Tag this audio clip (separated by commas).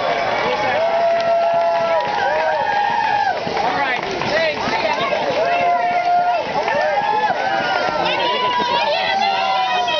Crowd, Cheering